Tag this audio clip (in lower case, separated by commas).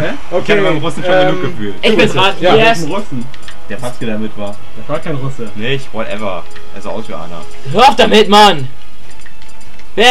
music, speech